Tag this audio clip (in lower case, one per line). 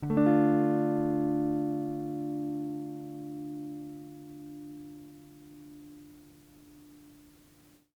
plucked string instrument
guitar
music
musical instrument